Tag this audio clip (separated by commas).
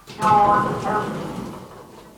Door, Sliding door, home sounds